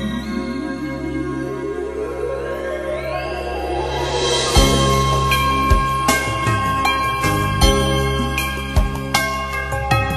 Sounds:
Music

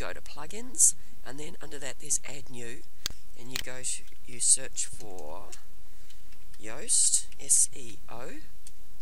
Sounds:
Speech

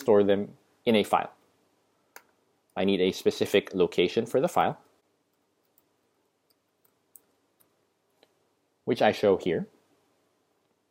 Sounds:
Speech

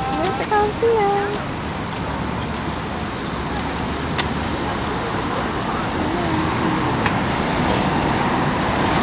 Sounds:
Speech, Spray

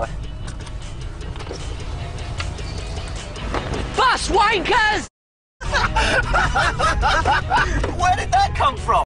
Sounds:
Speech, Music, Vehicle

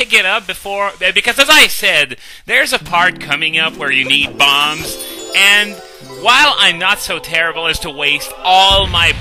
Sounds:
Music, Speech

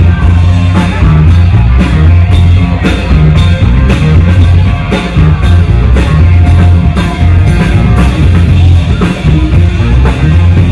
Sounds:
Disco, Speech, Music

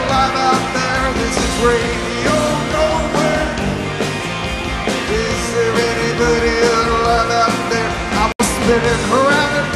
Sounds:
Music

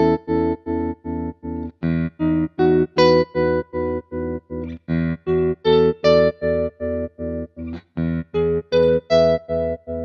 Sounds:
Electric guitar, Distortion, Music, Guitar, Effects unit

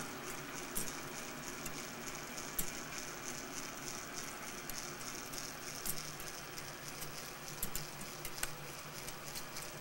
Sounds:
Tick

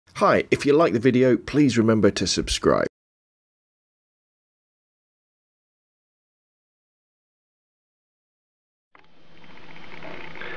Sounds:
Speech synthesizer, Speech

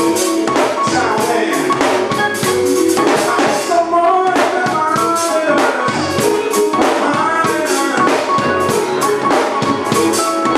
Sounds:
Music, Male singing

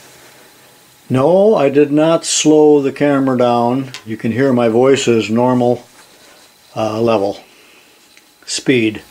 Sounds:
Speech, inside a small room

